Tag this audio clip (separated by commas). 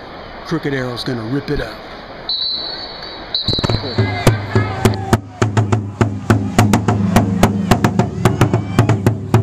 Music, Speech